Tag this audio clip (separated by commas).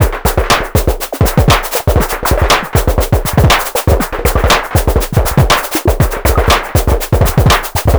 Drum kit, Percussion, Musical instrument, Music